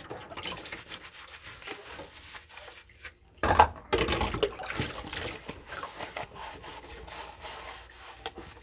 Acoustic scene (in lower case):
kitchen